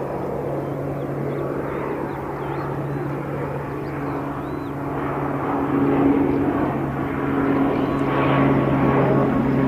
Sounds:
airplane flyby

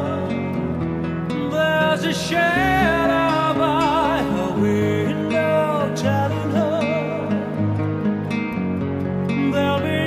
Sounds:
music

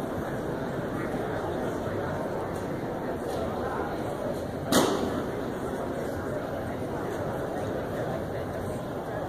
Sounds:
speech

